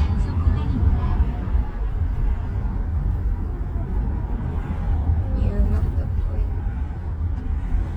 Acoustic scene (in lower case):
car